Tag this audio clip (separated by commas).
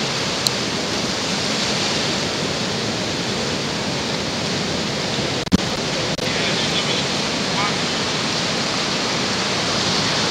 Speech, outside, rural or natural, Pink noise